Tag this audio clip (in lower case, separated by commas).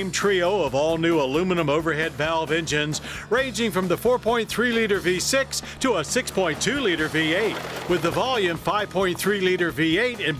vehicle, music, speech